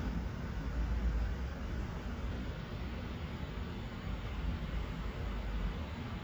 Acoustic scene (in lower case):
street